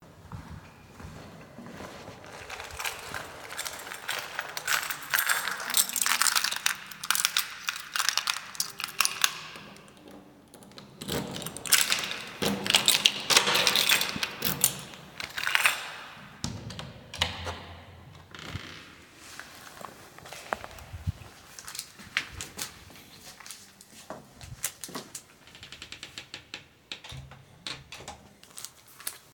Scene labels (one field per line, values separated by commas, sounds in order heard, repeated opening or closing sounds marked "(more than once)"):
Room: hallway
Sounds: footsteps, keys, door (more than once)